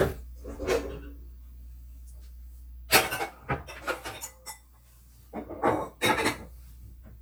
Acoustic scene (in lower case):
kitchen